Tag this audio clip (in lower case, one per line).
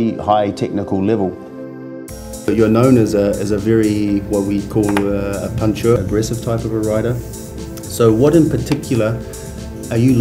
speech
music